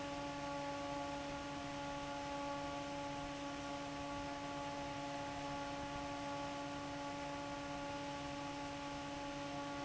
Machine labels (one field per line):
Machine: fan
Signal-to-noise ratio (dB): 6 dB